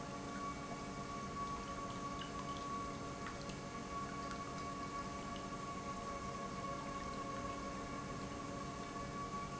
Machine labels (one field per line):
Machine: pump